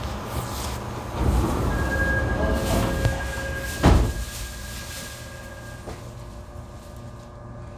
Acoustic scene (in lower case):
subway train